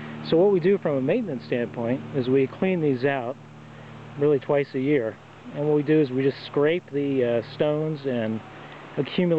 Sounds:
speech, outside, rural or natural

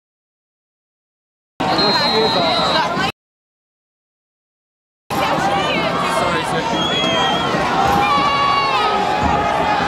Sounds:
speech

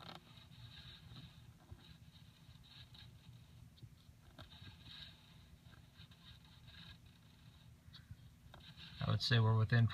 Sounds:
speech

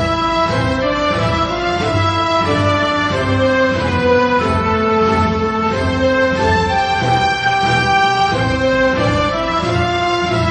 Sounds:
orchestra, musical instrument, music

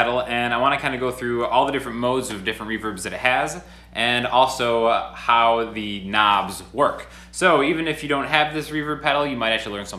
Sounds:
speech

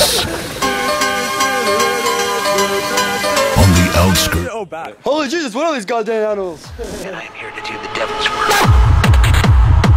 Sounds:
speech, music

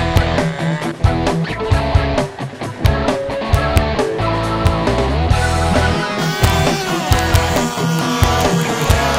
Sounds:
music

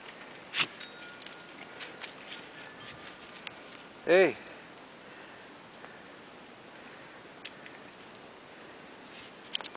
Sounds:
speech

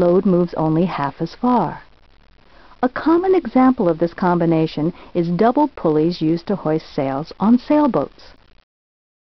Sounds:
speech

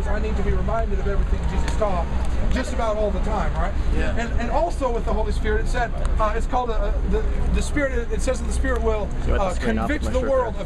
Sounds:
speech

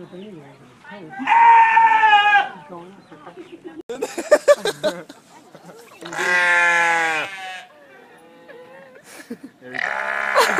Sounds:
sheep bleating

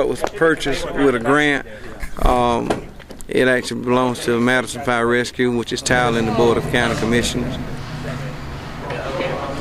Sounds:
speech

